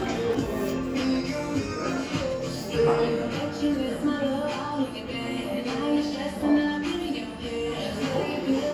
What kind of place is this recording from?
cafe